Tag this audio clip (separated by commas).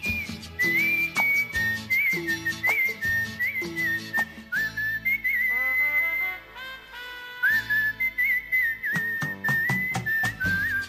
people whistling